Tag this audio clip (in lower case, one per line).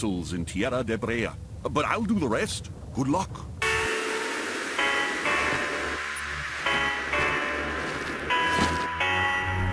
music
speech